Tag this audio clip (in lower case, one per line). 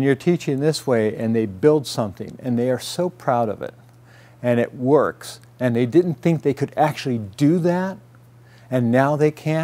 speech